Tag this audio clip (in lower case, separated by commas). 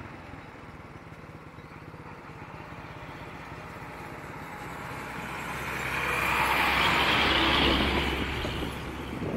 truck, vehicle